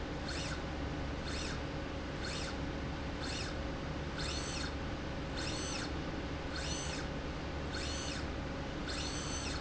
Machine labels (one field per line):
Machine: slide rail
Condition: normal